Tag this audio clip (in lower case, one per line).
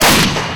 explosion